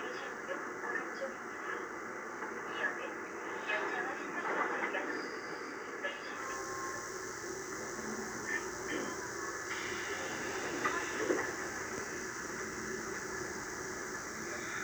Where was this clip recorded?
on a subway train